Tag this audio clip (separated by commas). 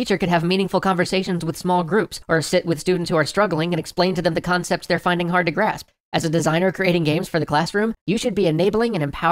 Speech synthesizer, Speech